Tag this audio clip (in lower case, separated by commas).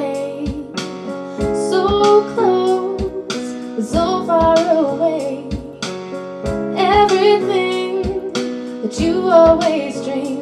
music, female singing